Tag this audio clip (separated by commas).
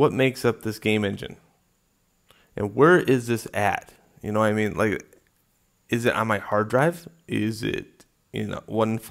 Speech